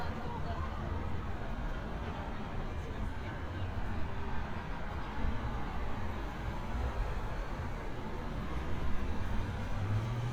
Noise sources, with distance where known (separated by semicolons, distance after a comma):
medium-sounding engine